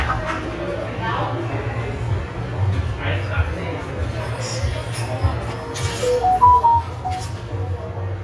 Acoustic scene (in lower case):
cafe